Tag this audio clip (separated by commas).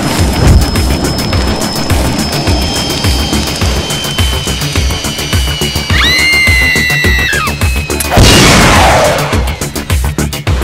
Music